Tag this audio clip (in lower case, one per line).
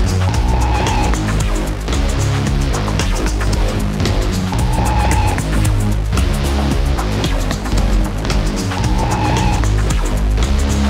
soundtrack music
music